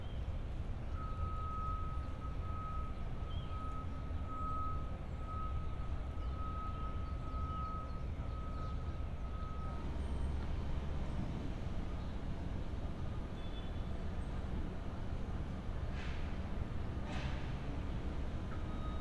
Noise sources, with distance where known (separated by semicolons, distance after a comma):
unidentified alert signal